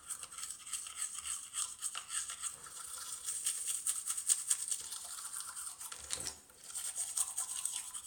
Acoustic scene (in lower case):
restroom